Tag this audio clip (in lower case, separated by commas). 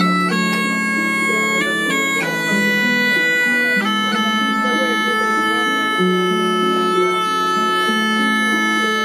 playing bagpipes